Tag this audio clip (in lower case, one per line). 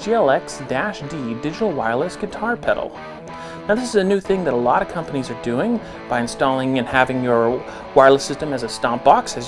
speech
music